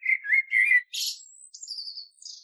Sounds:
bird, animal, wild animals

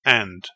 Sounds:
male speech, speech, human voice

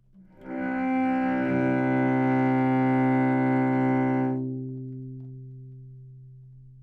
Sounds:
music, musical instrument, bowed string instrument

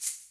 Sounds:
musical instrument, rattle (instrument), percussion, music

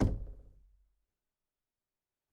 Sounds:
home sounds, wood, knock, door

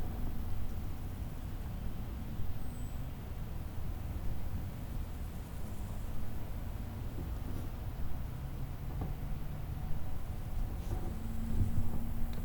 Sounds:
wild animals, insect, animal, cricket

